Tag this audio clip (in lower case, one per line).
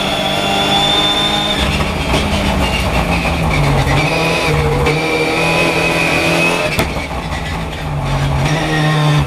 tire squeal
car
auto racing
vehicle